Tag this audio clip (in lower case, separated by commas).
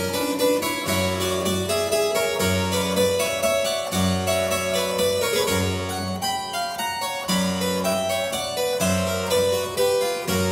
playing harpsichord, music, harpsichord